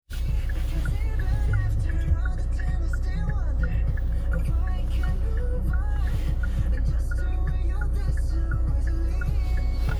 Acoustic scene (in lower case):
car